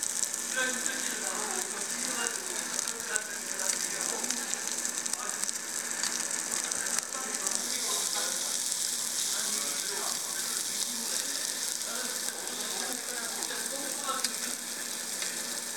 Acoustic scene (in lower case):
restaurant